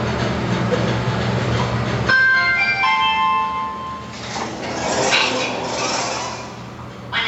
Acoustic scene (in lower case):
elevator